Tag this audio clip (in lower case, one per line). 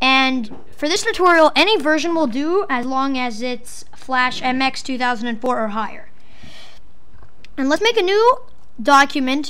speech